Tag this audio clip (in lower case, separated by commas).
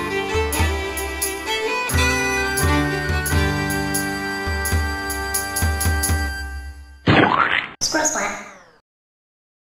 music, speech